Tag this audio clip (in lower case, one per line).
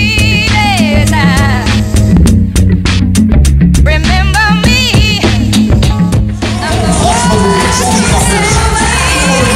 music
pop music
singing